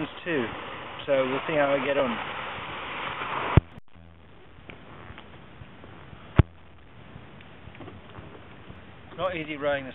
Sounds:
Vehicle, Speech, Boat

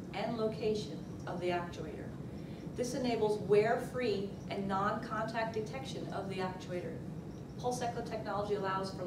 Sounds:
Speech

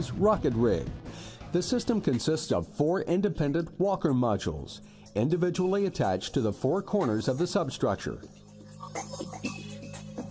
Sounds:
Speech, Music

